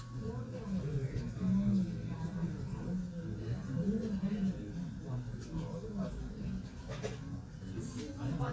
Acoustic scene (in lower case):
crowded indoor space